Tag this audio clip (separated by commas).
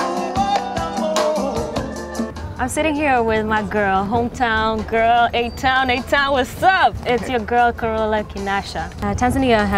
Speech, Music